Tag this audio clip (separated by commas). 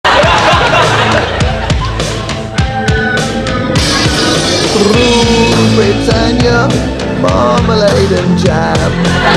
Whoop, Music